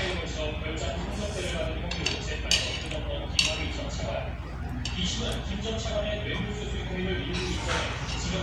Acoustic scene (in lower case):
restaurant